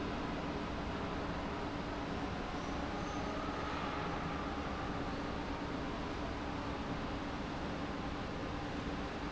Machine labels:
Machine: pump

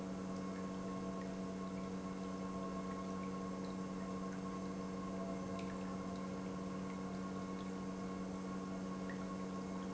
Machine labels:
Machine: pump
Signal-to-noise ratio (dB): 6 dB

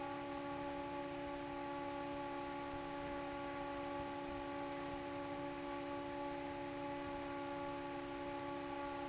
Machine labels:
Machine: fan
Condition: normal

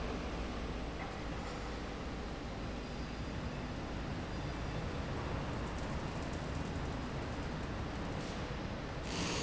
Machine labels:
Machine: slide rail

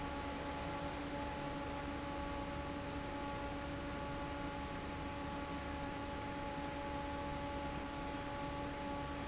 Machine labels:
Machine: fan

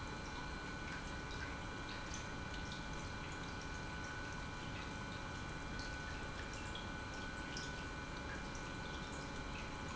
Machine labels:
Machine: pump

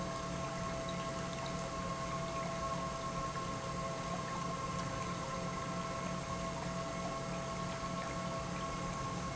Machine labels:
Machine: pump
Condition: normal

